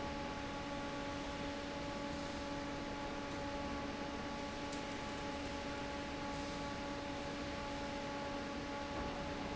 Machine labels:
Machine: fan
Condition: normal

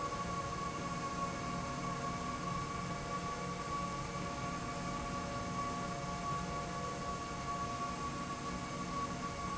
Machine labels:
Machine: slide rail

